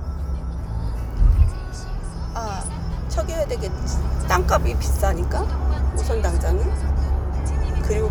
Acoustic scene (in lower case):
car